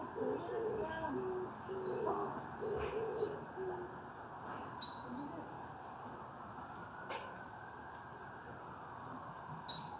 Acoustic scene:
residential area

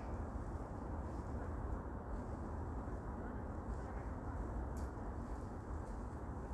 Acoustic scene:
park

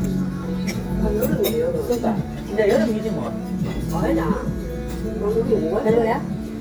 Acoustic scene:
restaurant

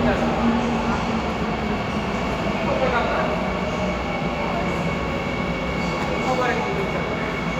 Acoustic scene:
subway station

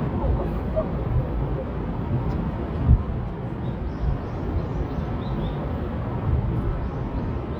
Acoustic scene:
park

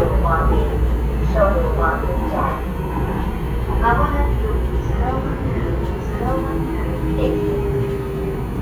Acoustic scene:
subway train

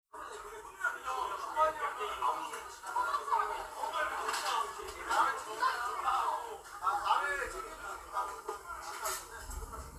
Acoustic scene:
crowded indoor space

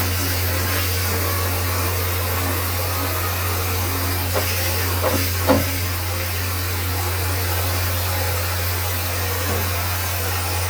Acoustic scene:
restroom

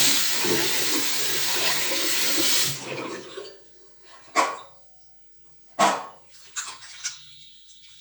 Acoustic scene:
restroom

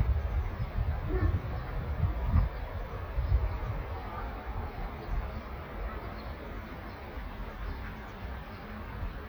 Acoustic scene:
park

